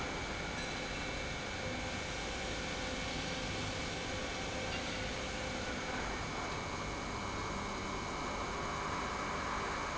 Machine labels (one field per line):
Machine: pump